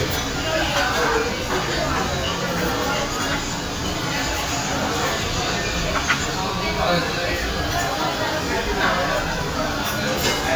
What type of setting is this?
crowded indoor space